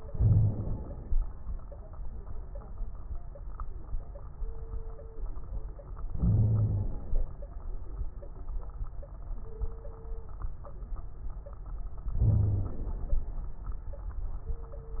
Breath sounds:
0.04-1.16 s: inhalation
0.04-1.16 s: crackles
6.13-7.32 s: inhalation
6.18-6.88 s: wheeze
12.21-12.78 s: wheeze
12.21-13.24 s: inhalation

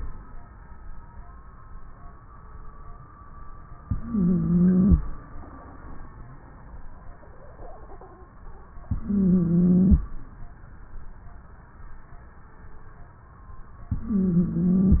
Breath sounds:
3.81-4.99 s: inhalation
3.81-4.99 s: wheeze
8.88-10.05 s: inhalation
8.88-10.05 s: wheeze
13.95-15.00 s: inhalation
13.95-15.00 s: wheeze

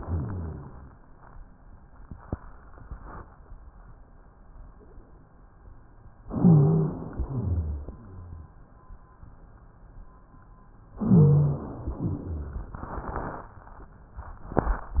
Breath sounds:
0.00-0.91 s: exhalation
0.00-0.91 s: rhonchi
6.24-7.12 s: inhalation
6.24-7.12 s: rhonchi
7.21-8.52 s: exhalation
7.21-8.52 s: rhonchi
10.98-11.99 s: inhalation
10.98-11.99 s: rhonchi
12.03-12.79 s: exhalation
12.03-12.79 s: rhonchi

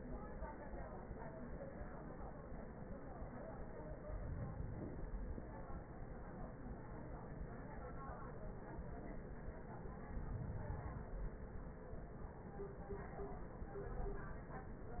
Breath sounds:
4.00-5.50 s: inhalation
9.88-11.38 s: inhalation

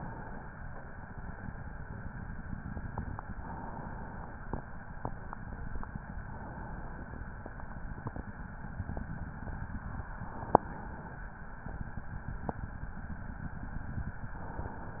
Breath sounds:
0.00-0.63 s: inhalation
3.21-4.58 s: inhalation
6.28-7.25 s: inhalation
10.03-11.40 s: inhalation
14.40-15.00 s: inhalation

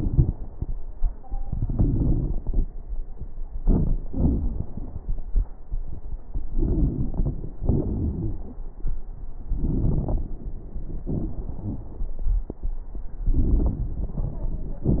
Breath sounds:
1.37-2.69 s: inhalation
1.37-2.69 s: crackles
3.65-5.50 s: exhalation
3.65-5.50 s: crackles
6.54-7.51 s: inhalation
6.54-7.51 s: crackles
7.64-8.61 s: exhalation
7.64-8.61 s: crackles
9.52-10.32 s: inhalation
9.52-10.32 s: crackles
11.06-12.49 s: exhalation
11.06-12.49 s: crackles
13.28-14.84 s: inhalation
13.28-14.84 s: crackles

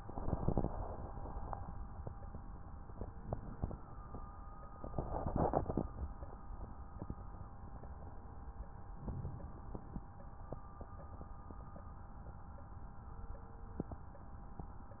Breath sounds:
2.84-3.83 s: inhalation
9.03-10.06 s: inhalation

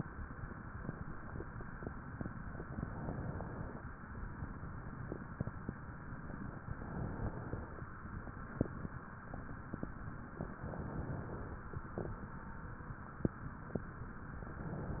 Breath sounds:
2.78-3.83 s: inhalation
6.75-7.80 s: inhalation
10.40-11.56 s: inhalation
14.47-15.00 s: inhalation

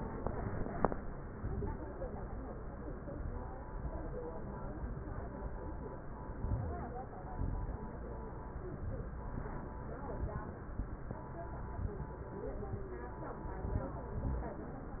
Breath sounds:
6.21-6.99 s: inhalation
7.11-7.88 s: exhalation
13.41-14.16 s: inhalation
14.16-14.88 s: exhalation

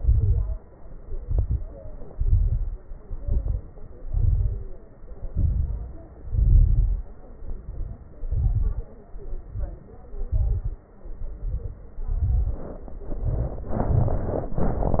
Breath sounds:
0.00-0.59 s: exhalation
0.00-0.59 s: crackles
1.06-1.76 s: inhalation
1.06-1.76 s: crackles
2.09-2.79 s: exhalation
2.09-2.79 s: crackles
3.06-3.76 s: inhalation
3.06-3.76 s: crackles
4.03-4.73 s: exhalation
4.03-4.73 s: crackles
5.28-6.06 s: inhalation
5.28-6.06 s: crackles
6.27-7.05 s: exhalation
6.27-7.05 s: crackles
7.33-8.11 s: inhalation
7.33-8.11 s: crackles
8.15-8.93 s: exhalation
8.15-8.93 s: crackles
9.20-9.97 s: inhalation
9.20-9.97 s: crackles
10.15-10.92 s: exhalation
10.15-10.92 s: crackles
11.06-11.84 s: inhalation
11.06-11.84 s: crackles
11.95-12.73 s: exhalation
11.95-12.73 s: crackles
13.02-13.79 s: inhalation
13.02-13.79 s: crackles
13.83-14.52 s: exhalation
13.83-14.52 s: crackles
14.58-15.00 s: inhalation
14.58-15.00 s: crackles

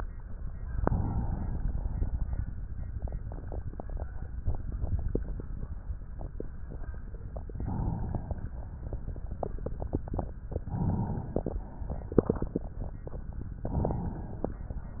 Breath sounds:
0.82-2.58 s: inhalation
7.43-8.76 s: inhalation
10.36-11.68 s: inhalation
13.52-14.77 s: inhalation

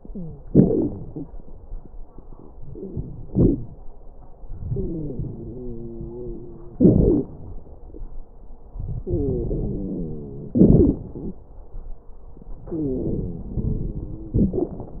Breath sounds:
0.00-0.45 s: wheeze
0.44-1.23 s: exhalation
0.45-1.25 s: crackles
2.69-3.74 s: wheeze
4.43-6.73 s: inhalation
4.69-6.73 s: wheeze
6.79-7.33 s: exhalation
6.79-7.33 s: crackles
9.01-10.56 s: inhalation
9.01-10.56 s: wheeze
10.59-11.41 s: exhalation
10.59-11.41 s: crackles
12.71-14.37 s: inhalation
12.71-14.37 s: wheeze
14.35-15.00 s: exhalation
14.35-15.00 s: crackles

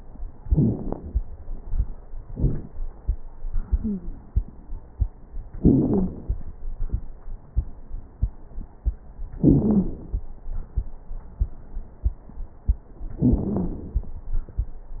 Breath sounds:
3.78-4.17 s: wheeze
5.62-6.14 s: wheeze
9.38-9.90 s: wheeze
13.21-13.73 s: wheeze

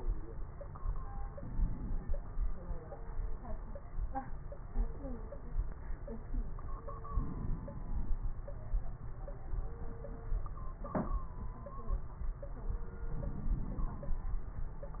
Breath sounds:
1.32-2.13 s: inhalation
7.04-8.14 s: inhalation
13.10-14.19 s: inhalation

